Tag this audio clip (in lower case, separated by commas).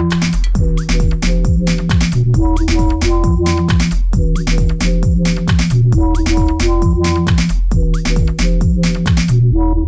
bleep, music